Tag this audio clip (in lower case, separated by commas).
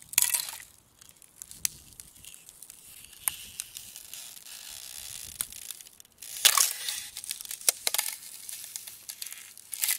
ice cracking